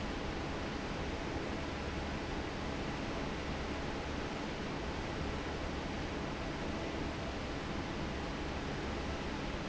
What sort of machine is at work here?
fan